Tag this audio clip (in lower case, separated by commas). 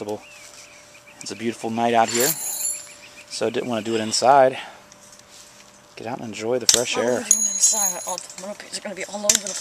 speech, bird call